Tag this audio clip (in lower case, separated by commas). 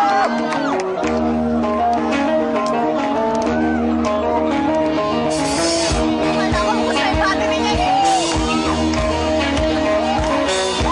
speech, music